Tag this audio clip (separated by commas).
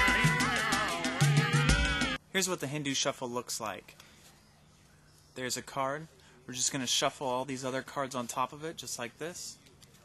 Speech, Music